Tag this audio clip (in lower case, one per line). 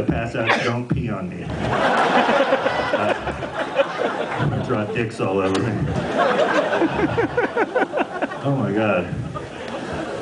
speech